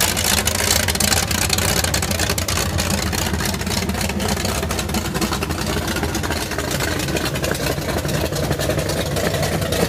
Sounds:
car engine starting

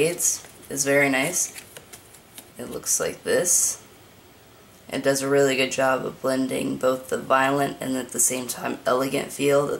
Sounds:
speech

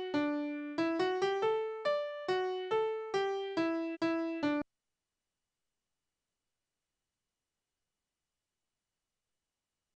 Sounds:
music

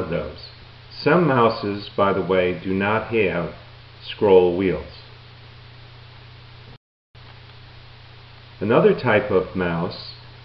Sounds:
speech

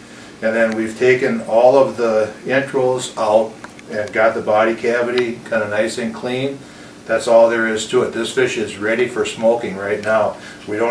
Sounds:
speech

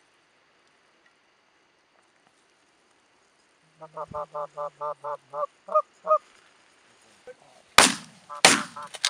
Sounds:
goose
honk
fowl
goose honking

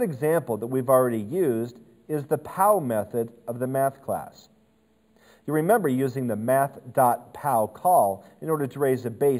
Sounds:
speech

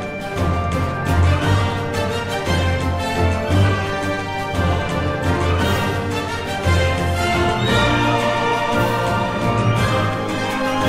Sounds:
orchestra
music

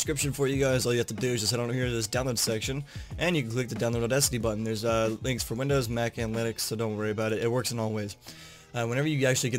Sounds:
speech

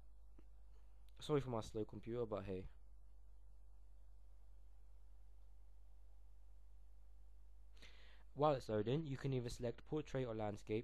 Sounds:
speech

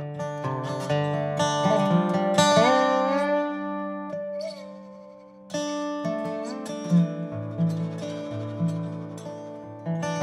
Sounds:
music

